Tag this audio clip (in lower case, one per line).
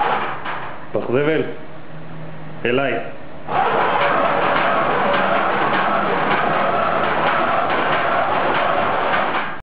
speech
male speech